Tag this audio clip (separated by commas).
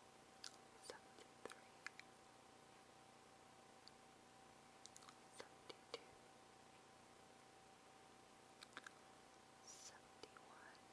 Speech, Silence